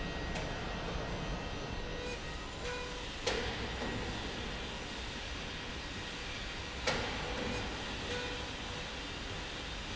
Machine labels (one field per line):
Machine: slide rail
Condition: normal